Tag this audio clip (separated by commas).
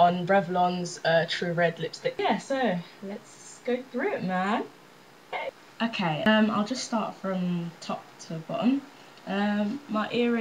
Speech